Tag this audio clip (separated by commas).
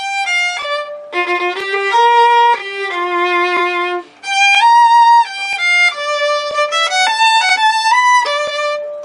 fiddle, Musical instrument, Music, Pizzicato